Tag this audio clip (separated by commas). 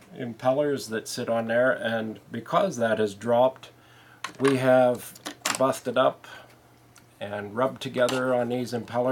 Speech